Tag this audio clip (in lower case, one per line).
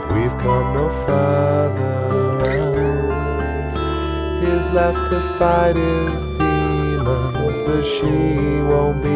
music